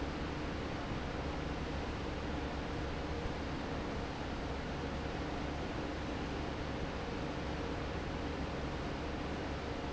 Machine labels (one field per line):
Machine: fan